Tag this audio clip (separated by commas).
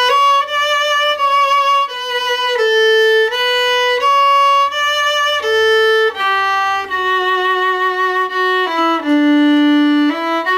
Music, Violin, Musical instrument